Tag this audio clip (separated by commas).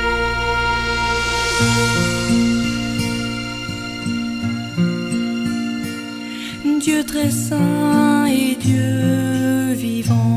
Music